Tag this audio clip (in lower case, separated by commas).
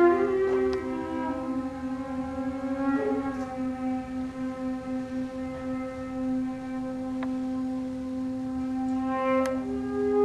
flute, music